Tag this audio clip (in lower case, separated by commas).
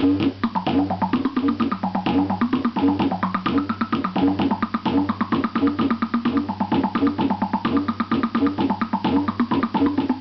music